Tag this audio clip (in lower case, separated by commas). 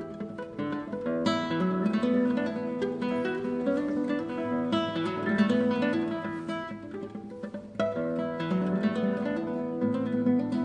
musical instrument, plucked string instrument, guitar, music, strum